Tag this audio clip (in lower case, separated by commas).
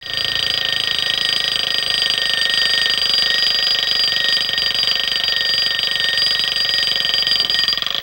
alarm